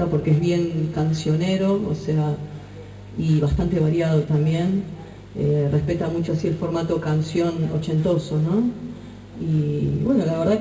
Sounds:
radio
speech

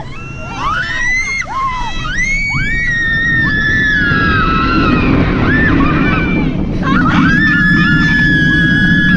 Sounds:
roller coaster running

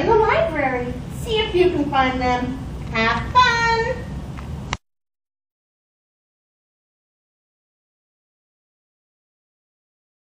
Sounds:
speech

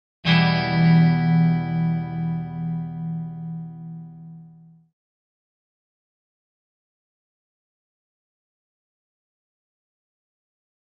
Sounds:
effects unit
music
guitar

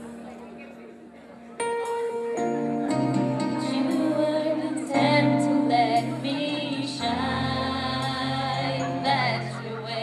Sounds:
music
speech

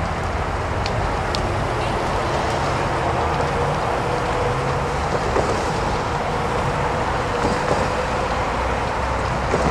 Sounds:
fire

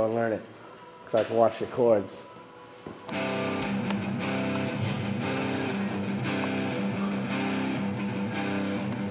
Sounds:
music
speech

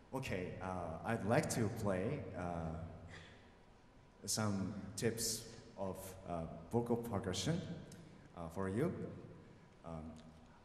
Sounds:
speech

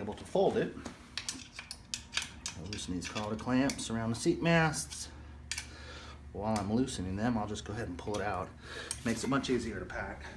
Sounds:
speech

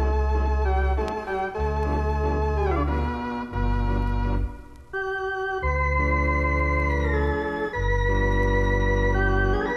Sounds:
music
keyboard (musical)
piano
musical instrument

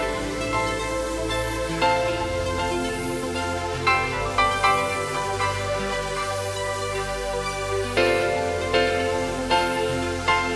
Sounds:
music

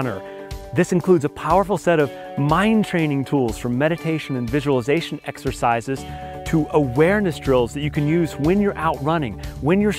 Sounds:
music
speech

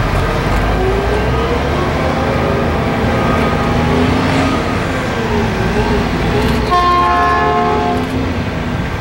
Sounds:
railroad car
train
vehicle

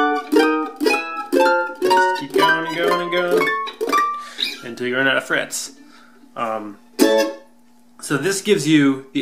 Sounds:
playing mandolin

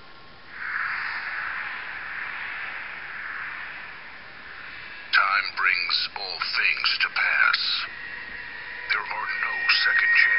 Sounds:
speech
inside a small room
telephone

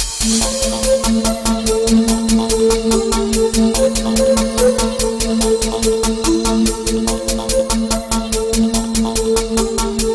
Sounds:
music
dance music

